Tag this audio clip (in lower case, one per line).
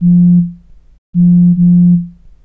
alarm
telephone